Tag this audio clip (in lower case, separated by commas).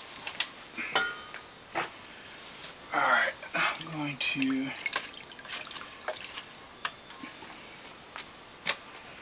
speech